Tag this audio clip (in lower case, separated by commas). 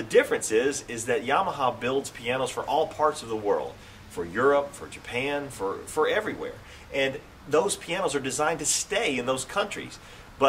speech